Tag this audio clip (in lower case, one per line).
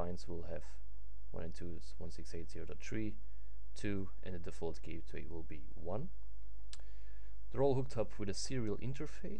speech